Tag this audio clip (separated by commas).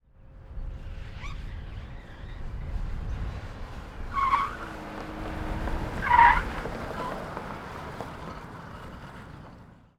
Motor vehicle (road), Vehicle, Car